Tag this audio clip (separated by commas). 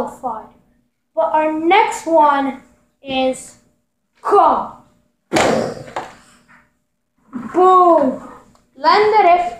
Speech